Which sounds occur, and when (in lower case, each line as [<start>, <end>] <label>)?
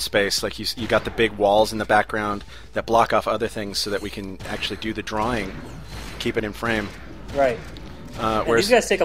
[0.00, 2.41] man speaking
[0.00, 9.04] conversation
[0.00, 9.04] video game sound
[0.45, 0.53] tick
[0.86, 1.15] sound effect
[2.14, 2.68] surface contact
[2.35, 2.67] breathing
[2.73, 4.22] man speaking
[2.99, 3.07] clicking
[3.81, 4.20] sound effect
[4.16, 4.26] clicking
[4.35, 4.87] sound effect
[4.44, 5.55] man speaking
[5.07, 5.48] sound effect
[5.40, 5.51] clicking
[5.76, 6.19] sound effect
[6.17, 6.84] man speaking
[6.52, 6.94] sound effect
[7.21, 7.64] sound effect
[7.29, 7.54] man speaking
[7.70, 7.85] clicking
[8.07, 8.56] sound effect
[8.10, 9.04] man speaking